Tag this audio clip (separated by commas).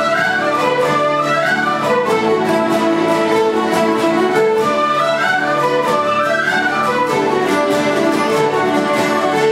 Music